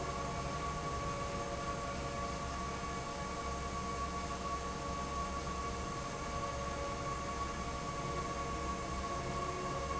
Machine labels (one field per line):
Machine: fan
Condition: normal